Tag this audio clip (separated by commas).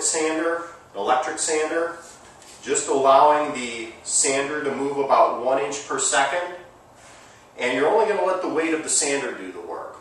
Speech